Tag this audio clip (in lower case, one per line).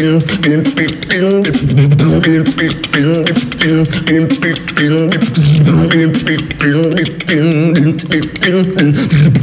beat boxing